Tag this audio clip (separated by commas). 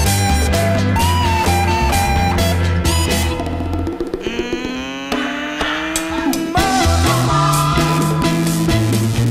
Roll, Music